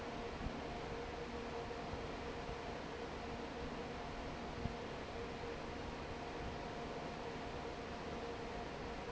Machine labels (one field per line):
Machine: fan